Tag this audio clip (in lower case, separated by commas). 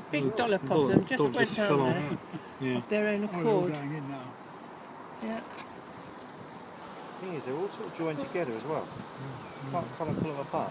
insect, fly, bee or wasp